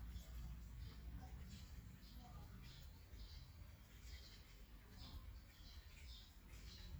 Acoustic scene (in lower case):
park